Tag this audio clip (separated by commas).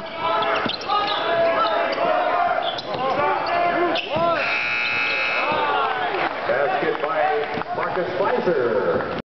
Speech